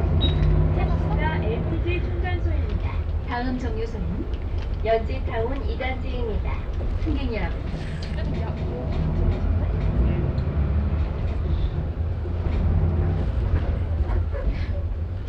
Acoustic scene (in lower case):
bus